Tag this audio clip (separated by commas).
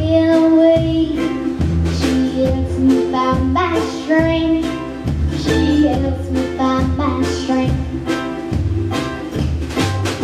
Music